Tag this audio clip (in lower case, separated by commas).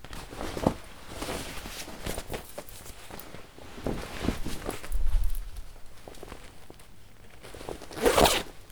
zipper (clothing), home sounds